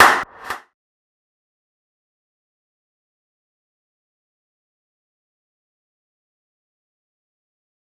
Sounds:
Clapping, Hands

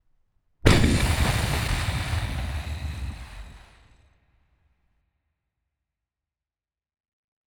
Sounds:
Boom, Explosion

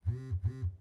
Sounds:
Telephone, Alarm

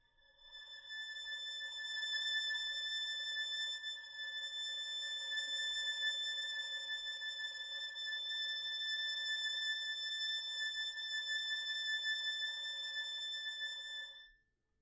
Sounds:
Bowed string instrument, Music, Musical instrument

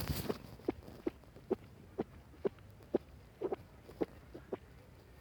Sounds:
Frog, Wild animals, Animal

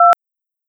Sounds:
Telephone, Alarm

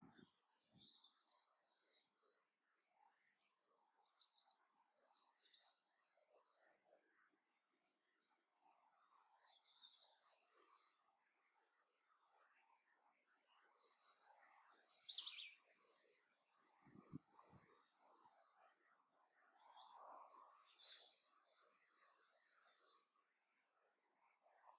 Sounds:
bird call, Bird, Animal, Wild animals

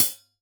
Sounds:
Percussion, Music, Musical instrument, Hi-hat, Cymbal

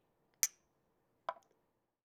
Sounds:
clink, Glass

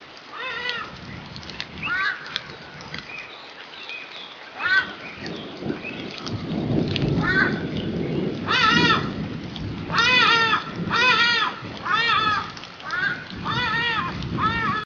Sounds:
Thunderstorm

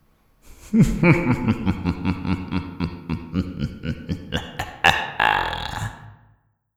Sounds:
Human voice, Laughter

